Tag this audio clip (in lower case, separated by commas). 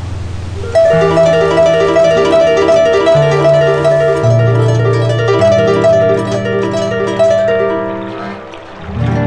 music, musical instrument, harp